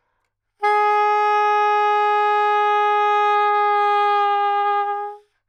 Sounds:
Musical instrument, woodwind instrument, Music

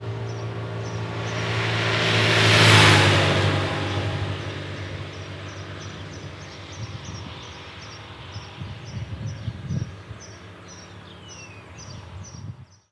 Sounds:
Motorcycle, Motor vehicle (road), Vehicle

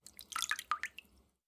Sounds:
Trickle, Pour, Liquid

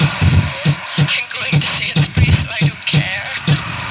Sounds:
Human voice

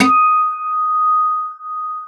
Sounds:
Guitar, Acoustic guitar, Plucked string instrument, Music, Musical instrument

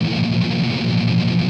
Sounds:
Guitar, Music, Plucked string instrument, Musical instrument, Strum

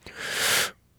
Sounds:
Breathing, Respiratory sounds

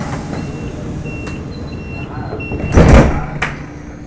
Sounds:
Rail transport, Train, Vehicle

